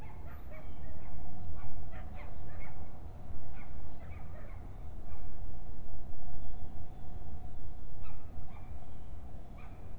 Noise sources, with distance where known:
dog barking or whining, far

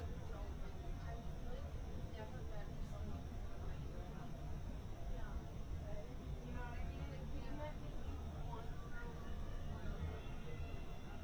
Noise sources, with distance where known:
person or small group talking, near

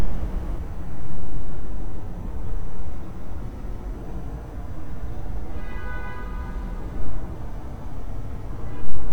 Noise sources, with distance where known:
car horn, far

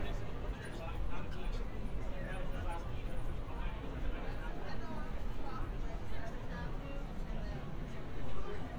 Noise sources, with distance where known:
person or small group talking

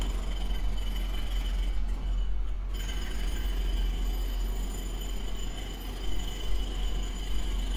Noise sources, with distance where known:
hoe ram, near

